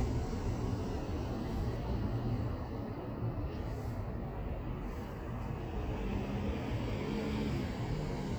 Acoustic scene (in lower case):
street